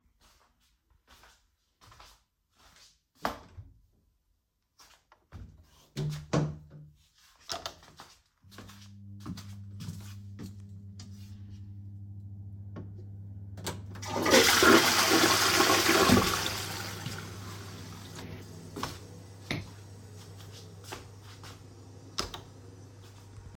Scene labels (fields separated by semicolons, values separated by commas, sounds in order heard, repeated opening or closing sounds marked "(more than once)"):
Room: lavatory, hallway; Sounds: footsteps, light switch, door, toilet flushing